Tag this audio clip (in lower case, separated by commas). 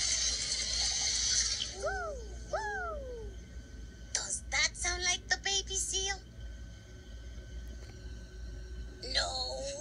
speech